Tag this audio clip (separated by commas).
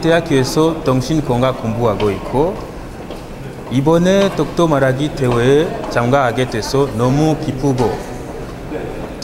Narration, Male speech, Speech